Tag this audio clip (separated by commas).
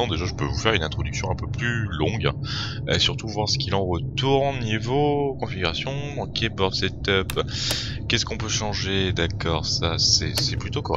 Speech